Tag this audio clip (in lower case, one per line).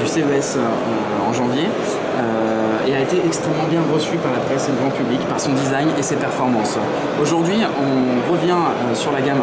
speech